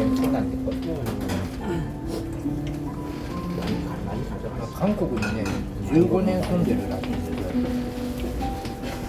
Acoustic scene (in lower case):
restaurant